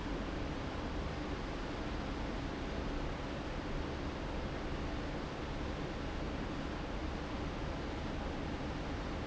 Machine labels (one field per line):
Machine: fan